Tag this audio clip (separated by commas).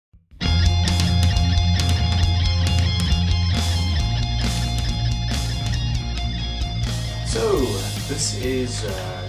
Music, Speech